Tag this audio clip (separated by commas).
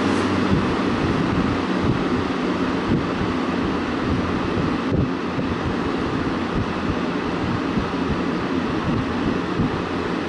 Mechanical fan